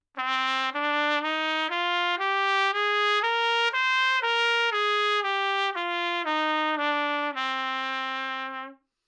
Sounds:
trumpet, brass instrument, musical instrument, music

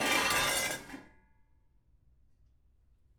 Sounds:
domestic sounds, dishes, pots and pans

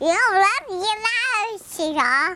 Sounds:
speech, human voice

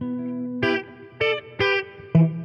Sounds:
guitar, music, electric guitar, plucked string instrument, musical instrument

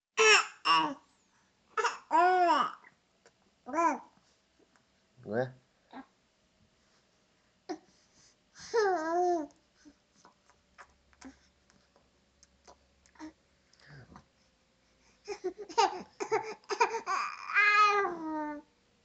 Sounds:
human voice, speech

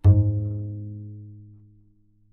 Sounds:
music, bowed string instrument, musical instrument

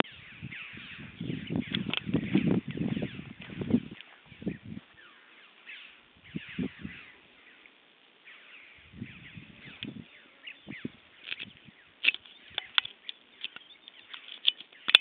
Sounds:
bird, bird song, animal, wild animals

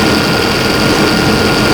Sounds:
engine, motor vehicle (road), vehicle

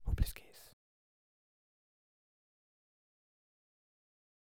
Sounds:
human voice, whispering

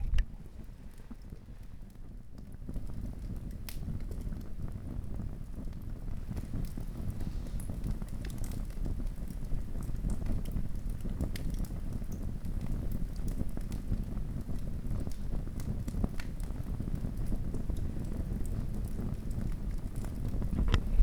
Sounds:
crackle, fire

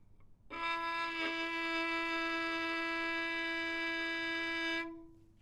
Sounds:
bowed string instrument, music, musical instrument

